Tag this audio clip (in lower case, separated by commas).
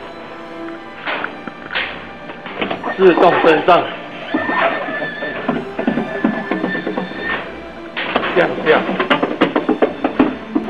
music, vehicle, speech